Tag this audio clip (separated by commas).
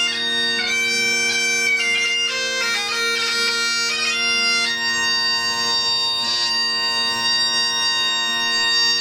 Bagpipes, Music